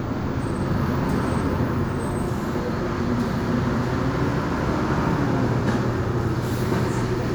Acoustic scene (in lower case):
bus